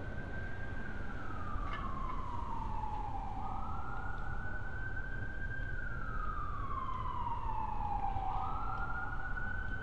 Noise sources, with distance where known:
siren, near

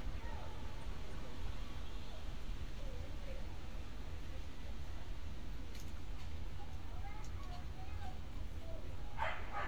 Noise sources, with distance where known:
person or small group talking
dog barking or whining, near

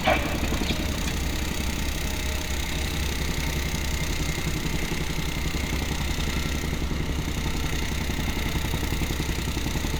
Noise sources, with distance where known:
unidentified impact machinery

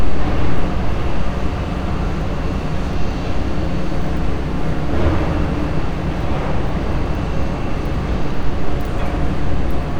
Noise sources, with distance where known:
rock drill, near

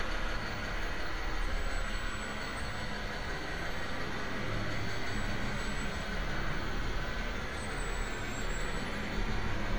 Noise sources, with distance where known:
large-sounding engine, near

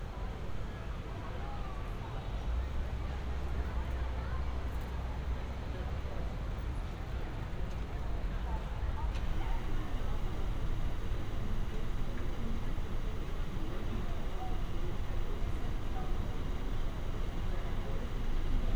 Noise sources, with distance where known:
person or small group talking, far

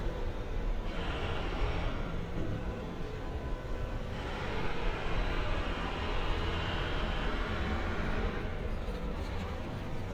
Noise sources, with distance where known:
jackhammer

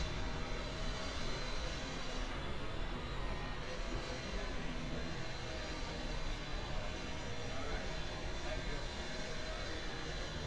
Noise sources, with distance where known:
unidentified powered saw, far
person or small group talking, near

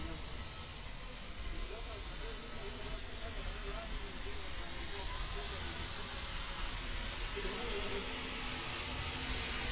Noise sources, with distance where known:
person or small group talking

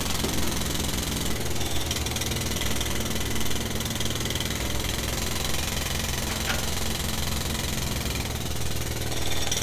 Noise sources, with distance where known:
unidentified impact machinery, near

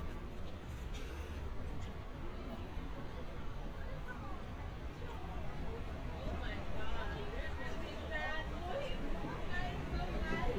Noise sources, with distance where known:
person or small group talking, near

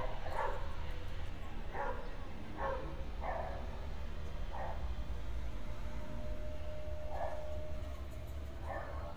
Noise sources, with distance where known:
dog barking or whining, far

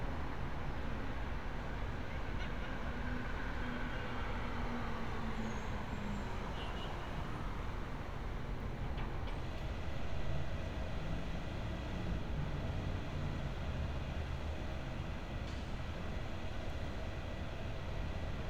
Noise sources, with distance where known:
engine of unclear size

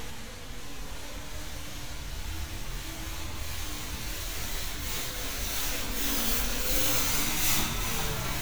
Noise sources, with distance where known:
medium-sounding engine

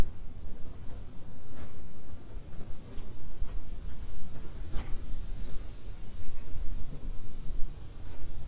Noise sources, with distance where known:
background noise

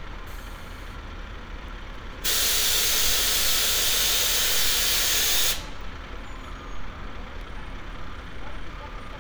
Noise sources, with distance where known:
large-sounding engine, near

